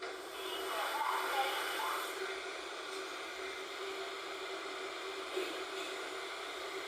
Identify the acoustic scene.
subway train